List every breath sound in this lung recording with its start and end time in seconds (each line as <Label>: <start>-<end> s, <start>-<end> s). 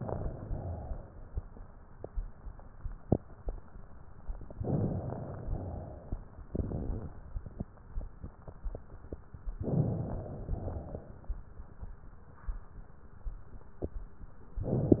Inhalation: 0.00-0.42 s, 4.57-5.50 s, 9.62-10.57 s
Exhalation: 0.42-1.35 s, 5.58-6.26 s, 10.57-11.31 s